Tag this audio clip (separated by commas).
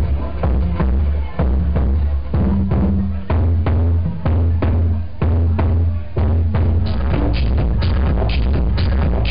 Speech, Music